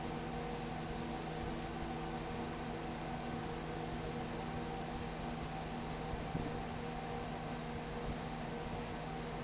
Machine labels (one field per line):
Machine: fan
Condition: abnormal